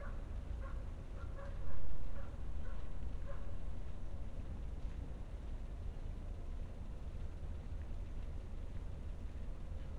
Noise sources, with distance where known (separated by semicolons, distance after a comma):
dog barking or whining, far